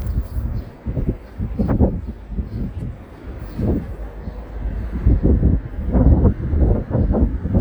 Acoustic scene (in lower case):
residential area